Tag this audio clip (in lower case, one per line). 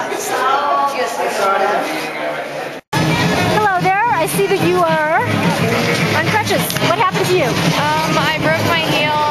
inside a public space
speech
music